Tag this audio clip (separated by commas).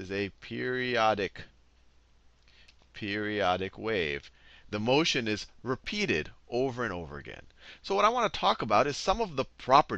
Speech